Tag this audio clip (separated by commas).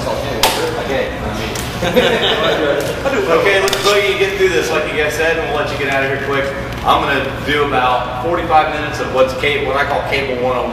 Speech